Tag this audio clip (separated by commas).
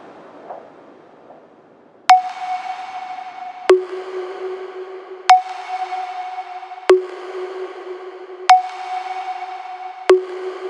Ping